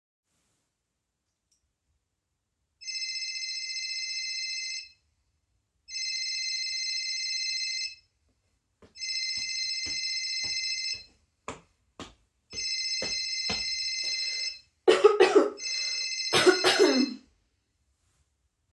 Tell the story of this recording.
The phone rings. I hear the phone, walk up to it, clear my throat and pick up.